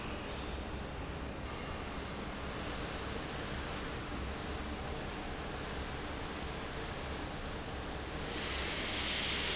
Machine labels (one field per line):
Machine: fan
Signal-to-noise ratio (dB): -6 dB